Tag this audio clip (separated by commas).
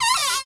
Domestic sounds, Cupboard open or close